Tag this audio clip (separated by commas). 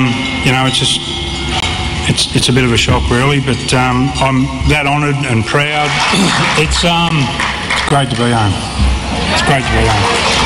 Speech